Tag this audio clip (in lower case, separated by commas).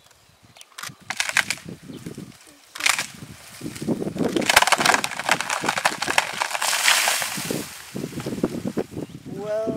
speech, outside, rural or natural